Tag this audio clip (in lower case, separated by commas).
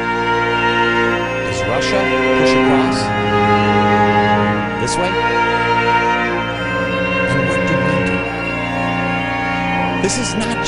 orchestra